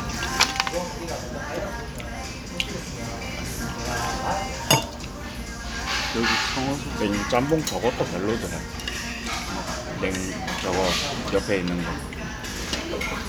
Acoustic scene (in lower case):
restaurant